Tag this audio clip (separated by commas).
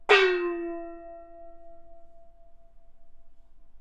Musical instrument, Music, Percussion, Gong